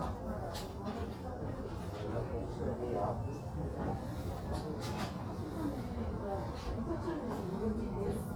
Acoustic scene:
crowded indoor space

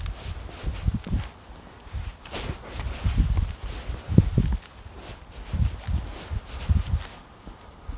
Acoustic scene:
residential area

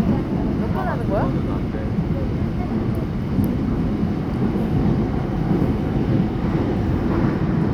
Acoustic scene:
subway train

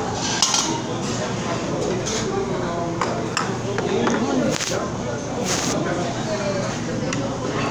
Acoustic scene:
restaurant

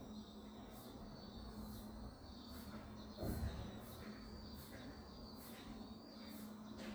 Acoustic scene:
residential area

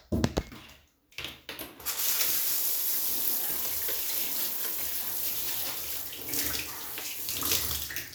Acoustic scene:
restroom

